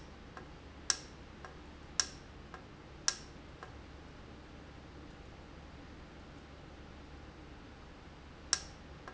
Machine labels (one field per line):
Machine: valve